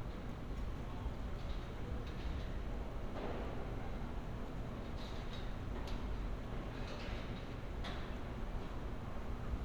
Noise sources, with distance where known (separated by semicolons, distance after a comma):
background noise